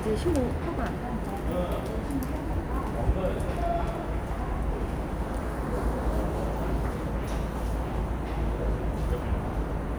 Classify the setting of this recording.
subway station